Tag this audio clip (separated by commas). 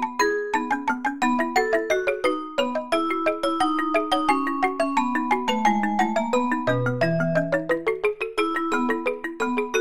Percussion, Marimba, Music